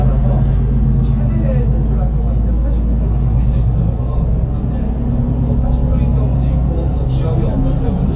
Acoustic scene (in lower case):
bus